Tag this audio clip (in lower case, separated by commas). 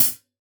musical instrument, music, hi-hat, cymbal, percussion